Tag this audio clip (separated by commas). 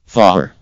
Human voice, Speech, Male speech